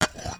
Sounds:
glass

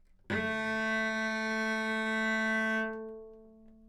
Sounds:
musical instrument, bowed string instrument, music

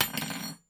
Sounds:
home sounds, silverware

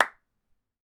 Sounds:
clapping, hands

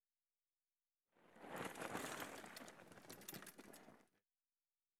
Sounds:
vehicle, bicycle

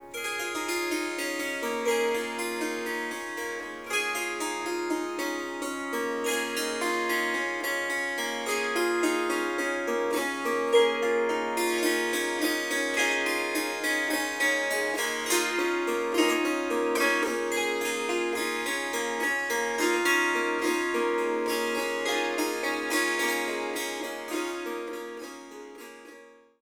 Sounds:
music, harp, musical instrument

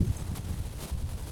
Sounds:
wind

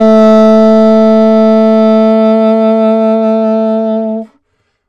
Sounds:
music, woodwind instrument, musical instrument

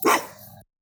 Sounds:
pets, animal, bark, dog

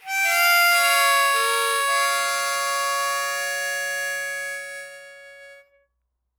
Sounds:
music, musical instrument, harmonica

